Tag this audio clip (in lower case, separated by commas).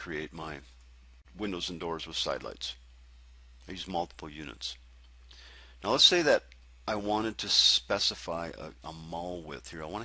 speech